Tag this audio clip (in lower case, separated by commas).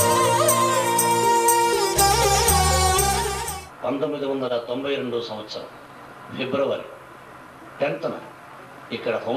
speech, male speech, monologue, music